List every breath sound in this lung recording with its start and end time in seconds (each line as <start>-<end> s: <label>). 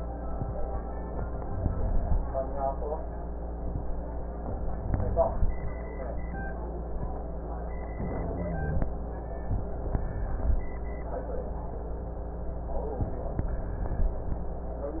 1.37-2.17 s: inhalation
1.37-2.17 s: rhonchi
4.71-5.50 s: inhalation
4.71-5.50 s: rhonchi
7.95-8.84 s: inhalation
8.20-8.84 s: rhonchi